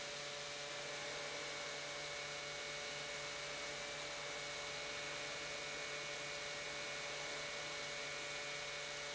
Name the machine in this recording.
pump